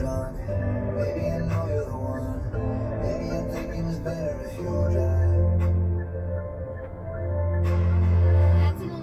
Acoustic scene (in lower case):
car